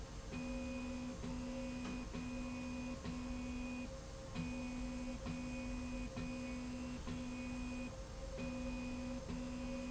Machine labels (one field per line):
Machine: slide rail